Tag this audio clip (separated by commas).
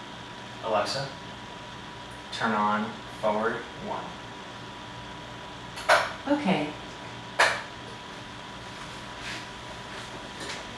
Speech